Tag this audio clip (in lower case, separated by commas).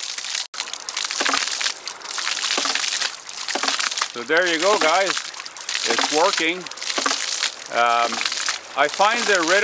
pumping water